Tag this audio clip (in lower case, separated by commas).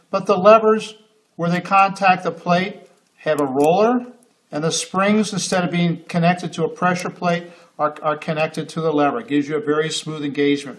speech